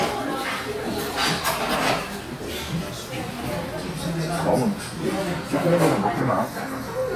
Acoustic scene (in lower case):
crowded indoor space